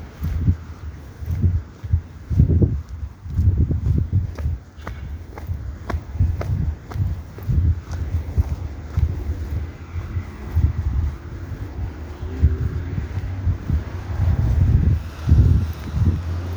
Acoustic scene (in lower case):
residential area